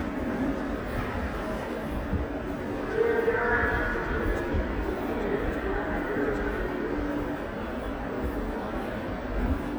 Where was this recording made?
in a subway station